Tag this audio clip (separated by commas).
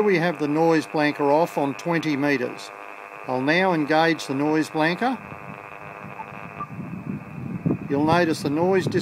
White noise, Speech